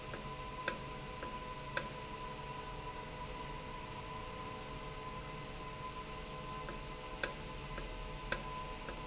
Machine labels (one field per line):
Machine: valve